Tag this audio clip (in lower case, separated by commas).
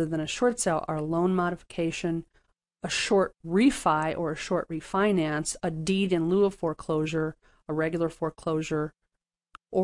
speech